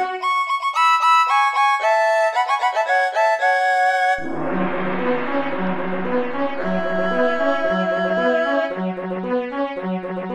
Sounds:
Video game music, Music

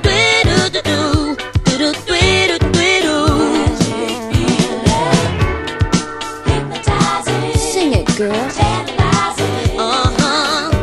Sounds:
Pop music, Music

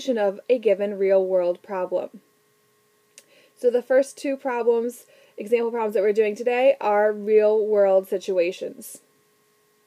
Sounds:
Speech

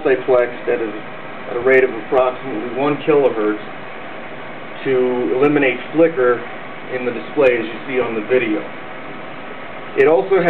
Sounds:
Speech

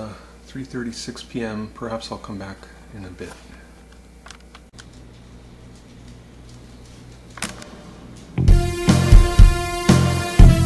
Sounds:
Music, Speech

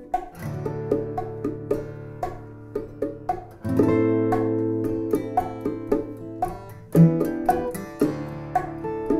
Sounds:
playing bongo

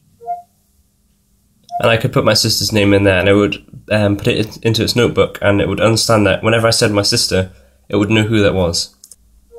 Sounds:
inside a small room, Speech

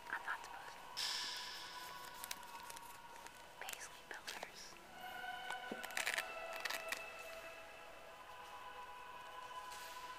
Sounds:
Music, Whispering

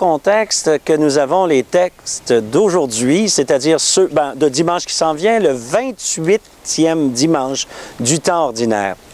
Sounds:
Speech

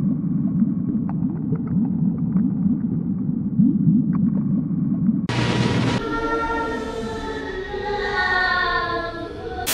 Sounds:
Static

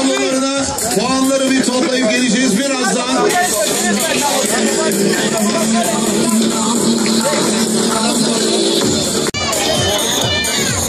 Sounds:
Speech, Music

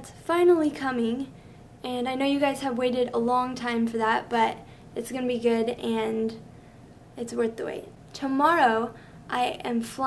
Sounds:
Speech

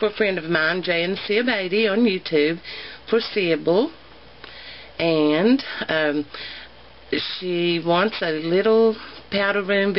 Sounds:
Speech

